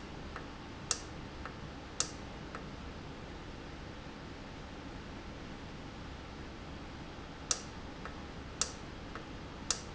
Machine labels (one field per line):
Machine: valve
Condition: normal